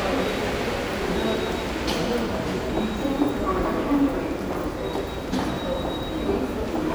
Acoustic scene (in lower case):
subway station